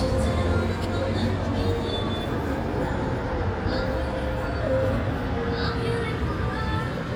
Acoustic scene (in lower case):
street